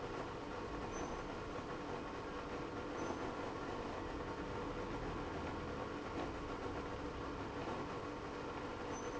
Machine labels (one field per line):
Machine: pump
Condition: abnormal